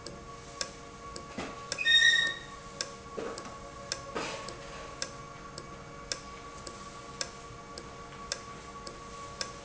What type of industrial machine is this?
valve